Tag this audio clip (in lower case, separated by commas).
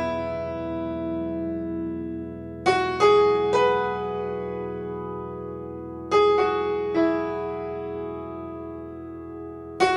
piano, music